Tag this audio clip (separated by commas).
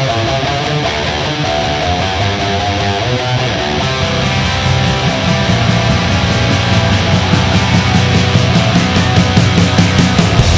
Electric guitar, Musical instrument, Music, Plucked string instrument, Guitar